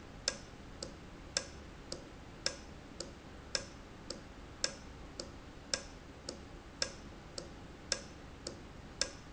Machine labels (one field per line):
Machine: valve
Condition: normal